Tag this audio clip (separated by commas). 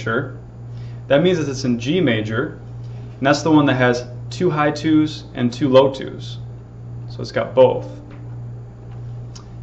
Speech, Pizzicato, Music, Musical instrument